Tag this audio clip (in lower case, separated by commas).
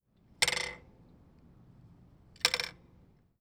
bicycle, vehicle